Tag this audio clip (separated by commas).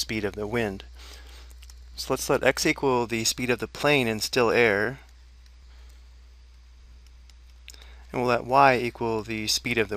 Speech